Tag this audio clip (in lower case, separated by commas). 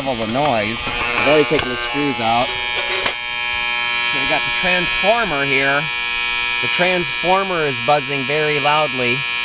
hum, mains hum